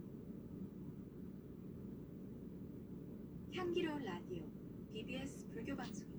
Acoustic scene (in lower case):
car